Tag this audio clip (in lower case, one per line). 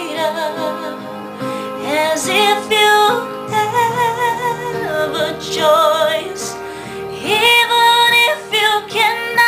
singing